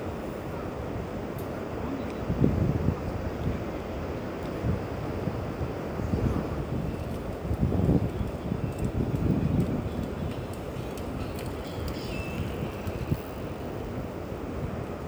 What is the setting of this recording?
park